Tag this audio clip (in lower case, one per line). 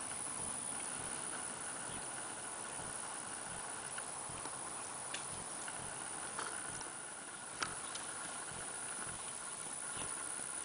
clip-clop
horse
animal
horse clip-clop